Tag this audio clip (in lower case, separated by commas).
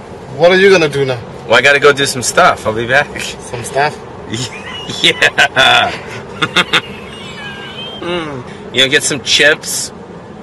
speech, outside, urban or man-made